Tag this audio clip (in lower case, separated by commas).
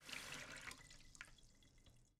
domestic sounds, faucet